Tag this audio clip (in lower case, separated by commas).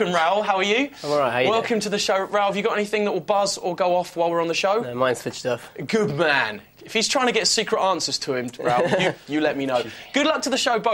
speech